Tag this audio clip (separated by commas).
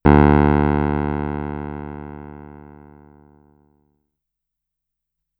Keyboard (musical), Musical instrument, Music, Piano